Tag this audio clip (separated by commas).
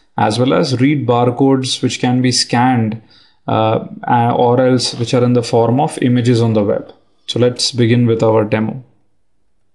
Speech